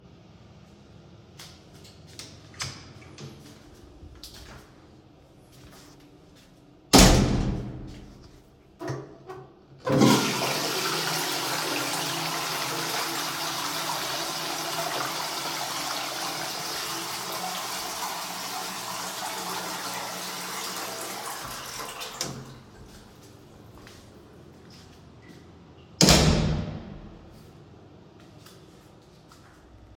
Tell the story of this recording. i opened the toilet door and went inside the bathroom. then i pressed the flush button and recorded the sound of the toilet flushing. after that i came out of the toilet and closed the door.